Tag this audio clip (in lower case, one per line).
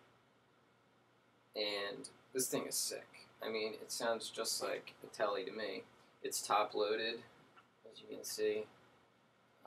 speech